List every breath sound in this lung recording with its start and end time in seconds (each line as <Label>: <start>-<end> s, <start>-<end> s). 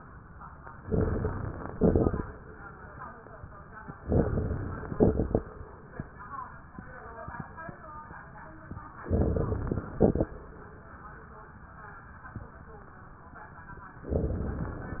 Inhalation: 0.80-1.71 s, 4.02-4.93 s, 9.07-9.98 s, 14.12-15.00 s
Exhalation: 1.75-2.23 s, 4.99-5.47 s, 9.96-10.35 s
Crackles: 0.82-1.70 s, 1.75-2.23 s, 4.02-4.93 s, 4.99-5.47 s, 9.07-9.98 s, 10.00-10.39 s